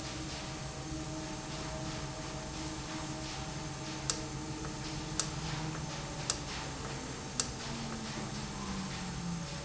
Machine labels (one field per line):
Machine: valve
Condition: normal